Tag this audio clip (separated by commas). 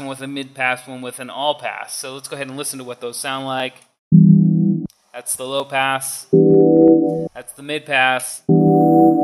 Speech, Sampler, Music